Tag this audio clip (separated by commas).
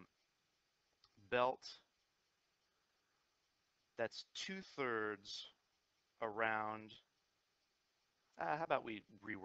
Speech